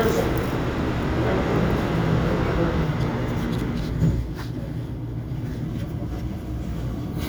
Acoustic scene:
subway train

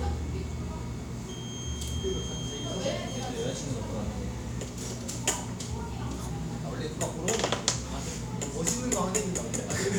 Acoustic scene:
cafe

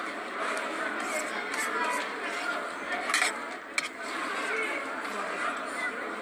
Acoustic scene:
restaurant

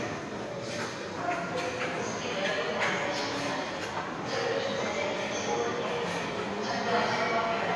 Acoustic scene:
subway station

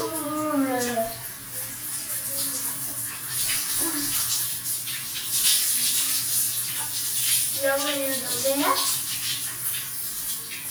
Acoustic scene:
restroom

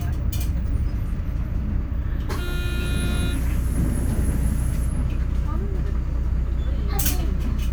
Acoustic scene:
bus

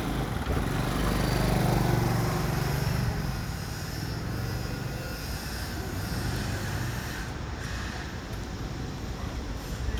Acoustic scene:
residential area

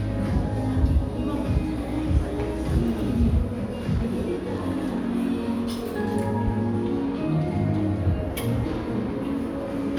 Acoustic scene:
crowded indoor space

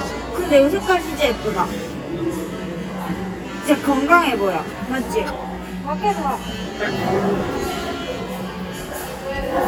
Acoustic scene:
cafe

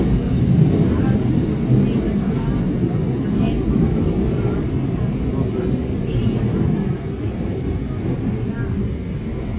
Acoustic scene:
subway train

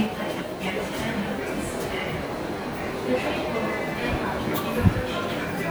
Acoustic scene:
subway station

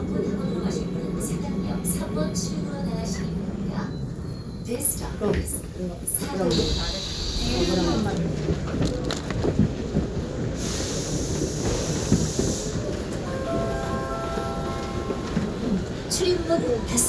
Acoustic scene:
subway train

